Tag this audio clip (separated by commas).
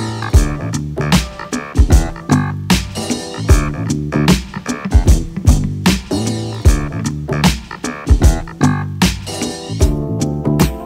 Music